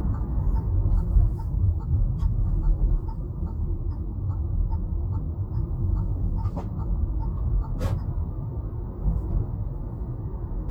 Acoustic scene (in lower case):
car